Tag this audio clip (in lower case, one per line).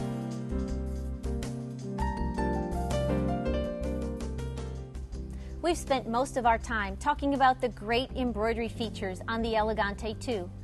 music
speech